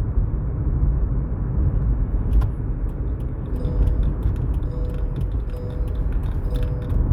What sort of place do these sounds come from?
car